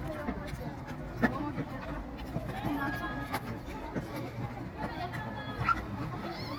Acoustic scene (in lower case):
park